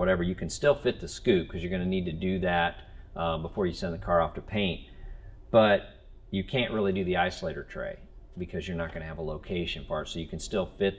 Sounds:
Speech

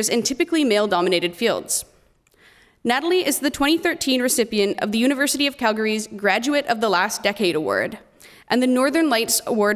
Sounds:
Speech

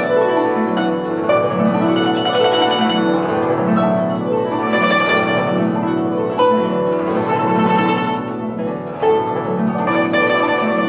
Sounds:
playing zither

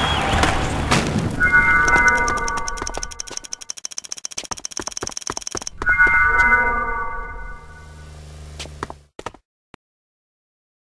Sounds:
Music, thud

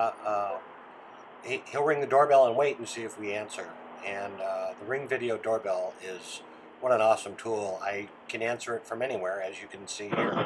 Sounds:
Speech

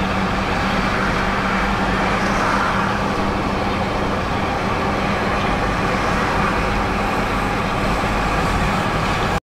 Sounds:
Truck, Vehicle

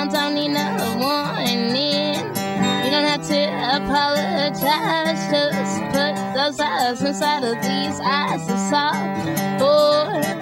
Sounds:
Music

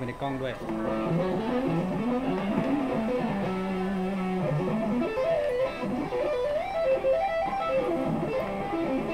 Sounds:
Music, Speech

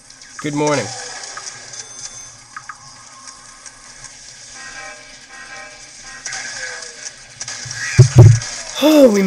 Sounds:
Speech

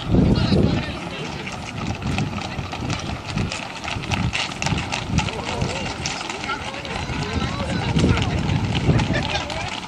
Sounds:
Speech, Clip-clop

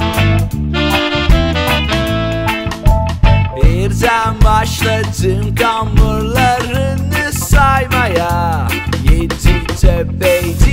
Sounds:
Music, Ska

